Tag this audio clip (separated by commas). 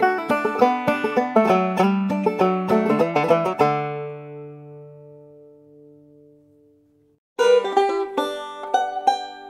Plucked string instrument, playing banjo, Musical instrument, Banjo, Music